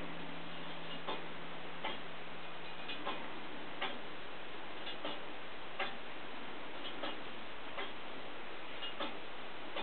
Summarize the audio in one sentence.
Items banging in the distance